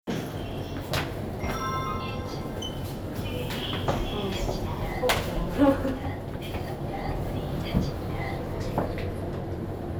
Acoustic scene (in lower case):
elevator